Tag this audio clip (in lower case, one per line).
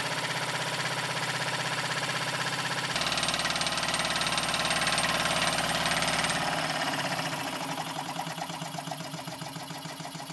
medium engine (mid frequency)
engine